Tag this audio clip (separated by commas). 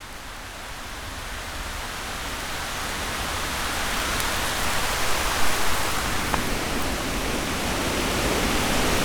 Water, Thunderstorm, Rain